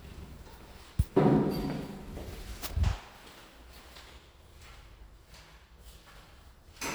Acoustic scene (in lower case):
elevator